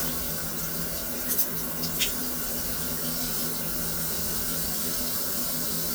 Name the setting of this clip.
restroom